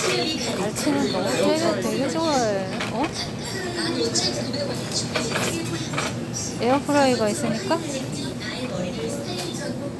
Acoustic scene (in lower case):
crowded indoor space